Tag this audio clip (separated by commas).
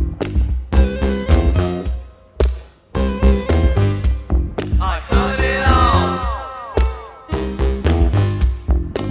Music